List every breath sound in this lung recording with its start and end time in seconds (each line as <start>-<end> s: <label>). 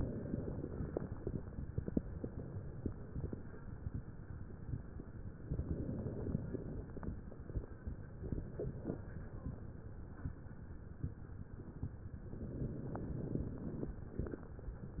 0.00-1.39 s: inhalation
0.00-1.39 s: crackles
5.50-7.16 s: inhalation
5.50-7.16 s: crackles
12.33-13.98 s: inhalation
12.33-13.98 s: crackles